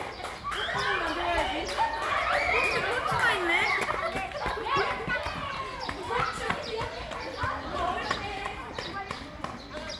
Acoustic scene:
park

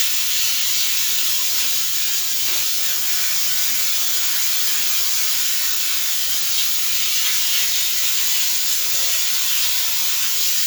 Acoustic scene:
restroom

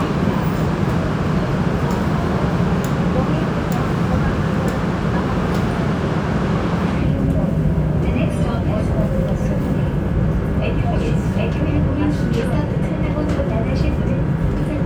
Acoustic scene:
subway train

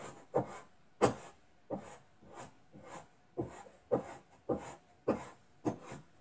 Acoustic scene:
kitchen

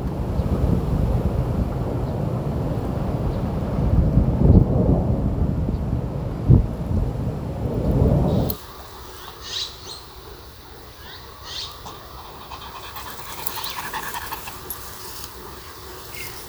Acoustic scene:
park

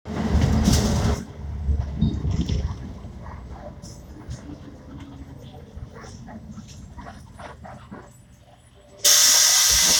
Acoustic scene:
bus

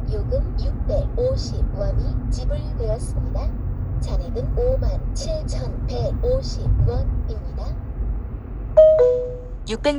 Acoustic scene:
car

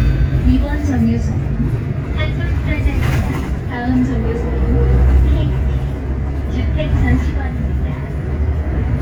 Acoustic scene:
bus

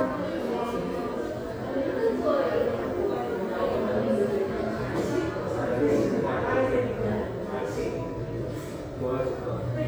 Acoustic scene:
subway station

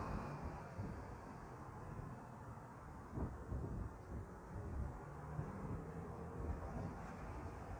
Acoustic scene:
street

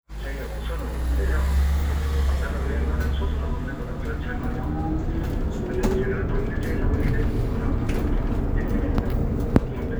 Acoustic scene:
bus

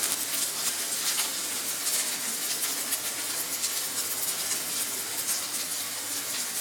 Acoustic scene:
kitchen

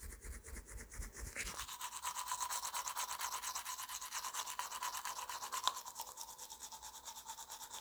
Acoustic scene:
restroom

